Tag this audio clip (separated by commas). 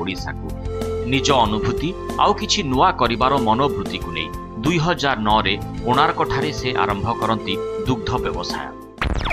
Music, Speech